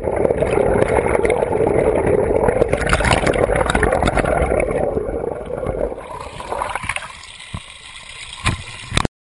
Water is bubbling